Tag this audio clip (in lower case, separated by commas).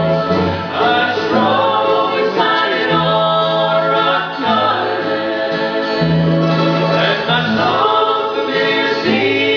male singing, female singing, music